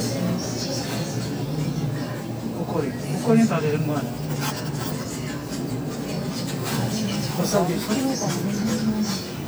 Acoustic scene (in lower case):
crowded indoor space